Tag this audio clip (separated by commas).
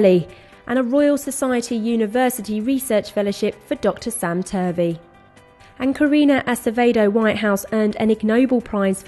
Music, Speech